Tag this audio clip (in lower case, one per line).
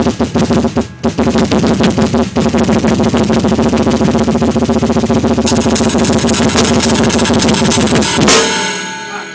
drum kit
musical instrument
drum
percussion
hi-hat
bass drum
speech
cymbal
music